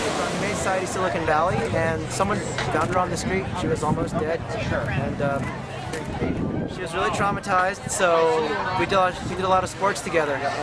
A person is talking and waves crash